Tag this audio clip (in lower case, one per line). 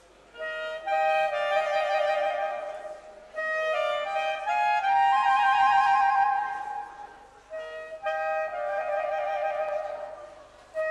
playing clarinet
clarinet